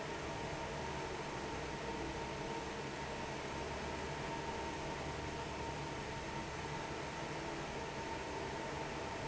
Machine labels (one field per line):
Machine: fan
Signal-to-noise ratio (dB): 0 dB